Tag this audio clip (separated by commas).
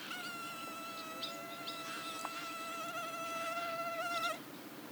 Wild animals, Insect, Animal